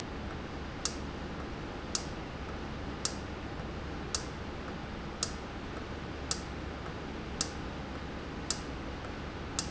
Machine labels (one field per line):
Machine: valve